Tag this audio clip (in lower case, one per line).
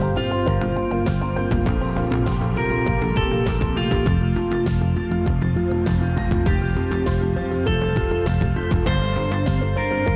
music